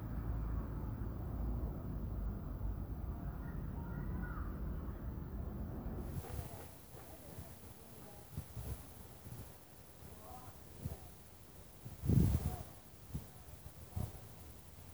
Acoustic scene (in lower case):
residential area